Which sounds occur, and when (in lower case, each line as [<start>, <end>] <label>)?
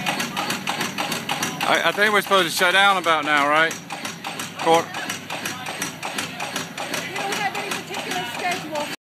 [0.00, 8.98] engine
[0.05, 0.21] generic impact sounds
[0.34, 0.54] generic impact sounds
[0.66, 0.85] generic impact sounds
[1.00, 1.16] generic impact sounds
[1.29, 1.51] generic impact sounds
[1.59, 8.97] conversation
[1.59, 3.75] man speaking
[1.61, 1.77] generic impact sounds
[1.90, 2.08] generic impact sounds
[2.20, 2.29] generic impact sounds
[2.52, 2.59] generic impact sounds
[2.71, 2.89] generic impact sounds
[3.02, 3.15] generic impact sounds
[3.26, 3.45] generic impact sounds
[3.55, 3.81] generic impact sounds
[3.85, 6.90] speech noise
[3.92, 4.17] generic impact sounds
[4.24, 4.44] generic impact sounds
[4.53, 4.85] man speaking
[4.59, 4.85] generic impact sounds
[4.92, 5.20] generic impact sounds
[5.30, 5.53] generic impact sounds
[5.66, 5.92] generic impact sounds
[6.03, 6.25] generic impact sounds
[6.39, 6.67] generic impact sounds
[6.77, 7.03] generic impact sounds
[6.98, 8.97] woman speaking
[7.16, 7.40] generic impact sounds
[7.55, 7.81] generic impact sounds
[7.99, 8.28] generic impact sounds
[8.06, 8.38] human voice
[8.39, 8.57] generic impact sounds
[8.77, 8.95] generic impact sounds